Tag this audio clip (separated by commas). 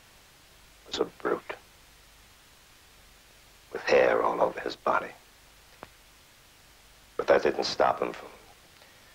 Speech